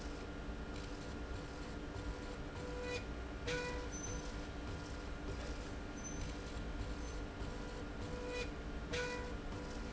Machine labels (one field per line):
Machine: slide rail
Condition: normal